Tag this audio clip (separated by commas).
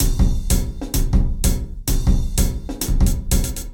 Musical instrument, Drum kit, Percussion, Music